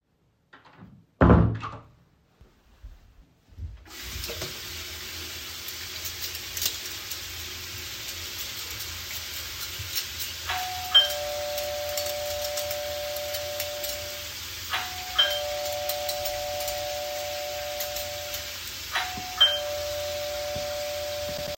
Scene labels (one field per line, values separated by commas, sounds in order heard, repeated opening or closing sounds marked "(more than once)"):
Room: kitchen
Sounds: door, running water, cutlery and dishes, bell ringing